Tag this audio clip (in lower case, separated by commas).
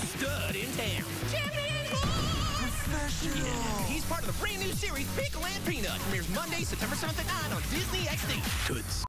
speech, music